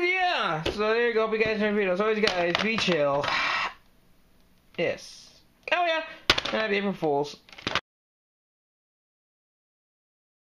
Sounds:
speech, inside a small room

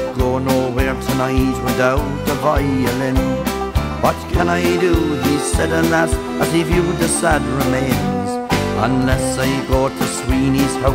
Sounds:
music, musical instrument, violin

